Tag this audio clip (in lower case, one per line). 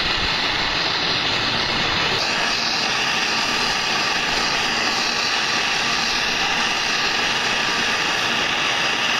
jet engine
aircraft engine